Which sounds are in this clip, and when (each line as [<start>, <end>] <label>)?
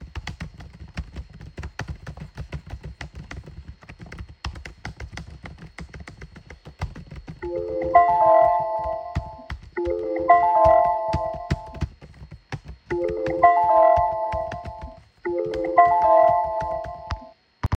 [0.00, 17.77] keyboard typing
[7.38, 17.26] phone ringing